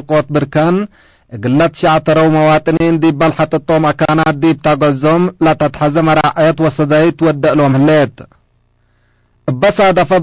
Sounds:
Speech

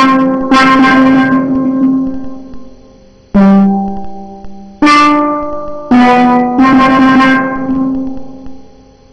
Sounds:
Cello, Steelpan, Drum kit, Percussion, Musical instrument, Drum, Music

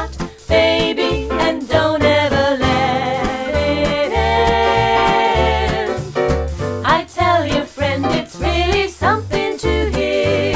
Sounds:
Singing, Music

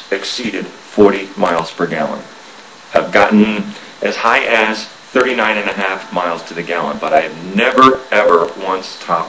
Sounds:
Speech

